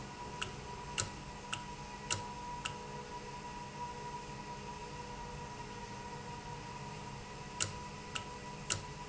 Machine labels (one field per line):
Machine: valve